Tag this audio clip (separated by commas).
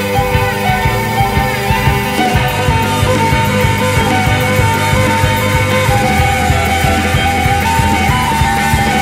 Music, Wedding music, Rock and roll